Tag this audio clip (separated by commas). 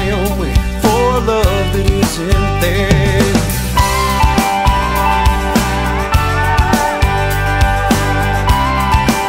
Music